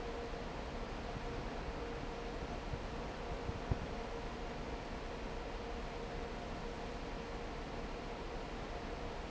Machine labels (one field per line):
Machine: fan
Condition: normal